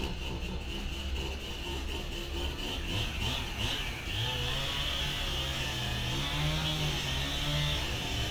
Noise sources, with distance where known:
chainsaw, near

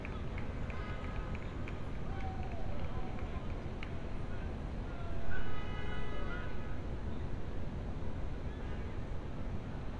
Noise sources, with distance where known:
unidentified human voice, far

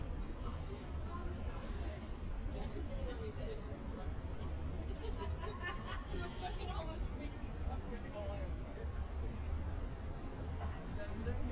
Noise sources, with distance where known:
unidentified human voice, near

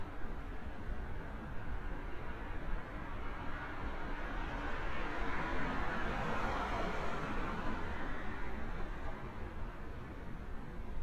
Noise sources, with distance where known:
medium-sounding engine, near

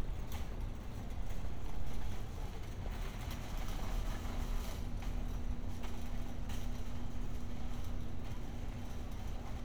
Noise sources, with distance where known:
background noise

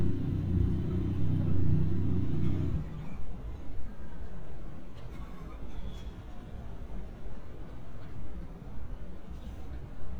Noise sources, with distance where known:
medium-sounding engine

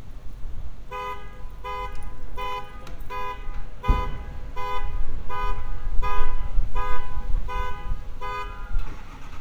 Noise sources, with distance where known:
car alarm, near

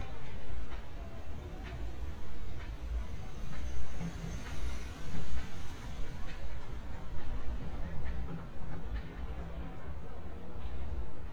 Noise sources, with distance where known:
music from an unclear source, far

